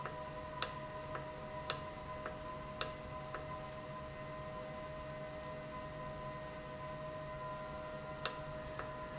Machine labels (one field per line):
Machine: valve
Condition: normal